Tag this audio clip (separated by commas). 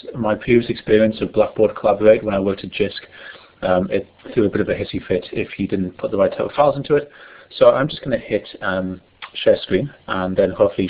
Speech